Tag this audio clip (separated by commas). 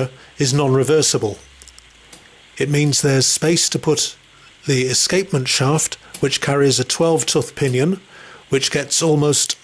Speech